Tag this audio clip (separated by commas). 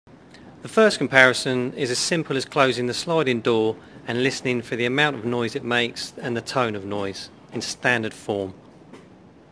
Speech